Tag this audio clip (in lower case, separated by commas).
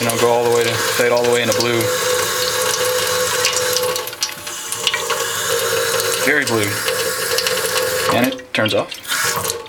water, sink (filling or washing), faucet